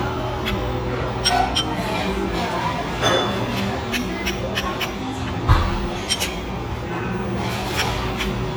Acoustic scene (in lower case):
restaurant